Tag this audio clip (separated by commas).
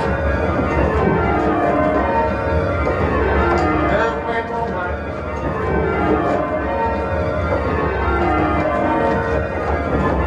Bell, Music